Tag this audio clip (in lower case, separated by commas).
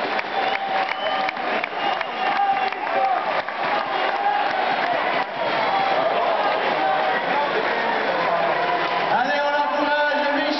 speech